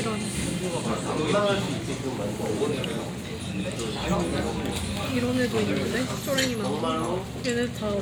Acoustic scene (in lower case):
crowded indoor space